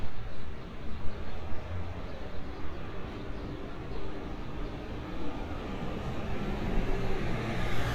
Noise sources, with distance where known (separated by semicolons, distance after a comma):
medium-sounding engine, near